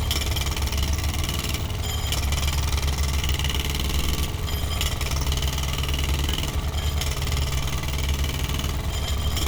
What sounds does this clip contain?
jackhammer